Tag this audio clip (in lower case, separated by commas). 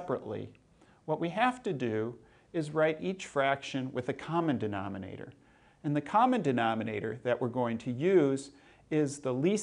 speech